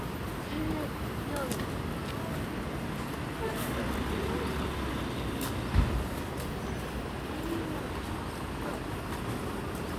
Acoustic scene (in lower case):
residential area